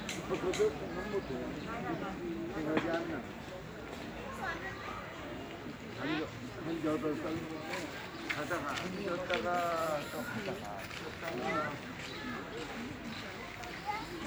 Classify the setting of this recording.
park